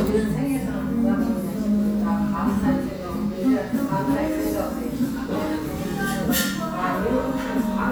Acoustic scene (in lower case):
cafe